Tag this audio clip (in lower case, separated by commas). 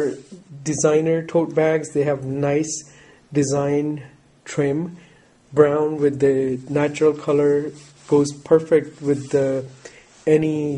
speech